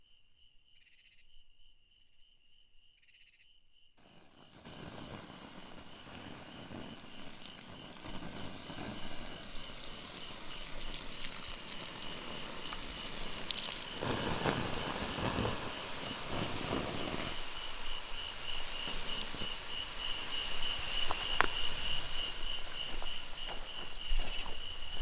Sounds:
insect, animal, wild animals

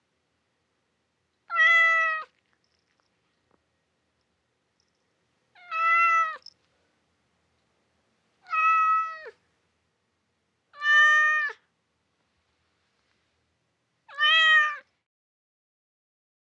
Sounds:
domestic animals, meow, cat, animal

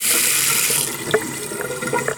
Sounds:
sink (filling or washing), domestic sounds, faucet

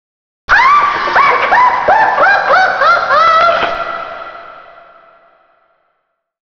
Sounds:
human voice, laughter

